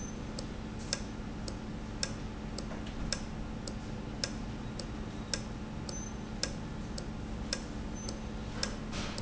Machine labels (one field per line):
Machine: valve